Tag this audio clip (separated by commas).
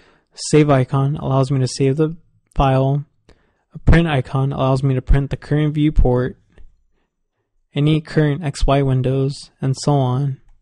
Speech